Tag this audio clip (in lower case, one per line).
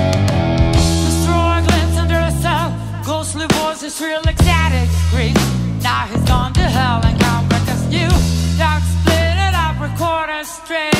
music